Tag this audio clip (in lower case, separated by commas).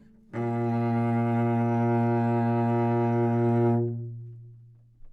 bowed string instrument, music, musical instrument